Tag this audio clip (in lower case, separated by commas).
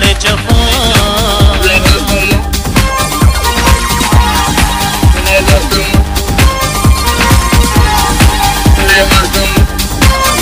techno, disco, electronic music, music